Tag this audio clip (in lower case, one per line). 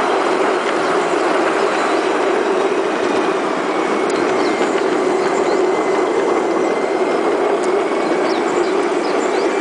outside, rural or natural
train